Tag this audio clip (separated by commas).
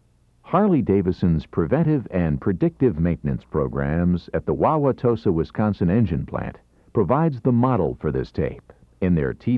Speech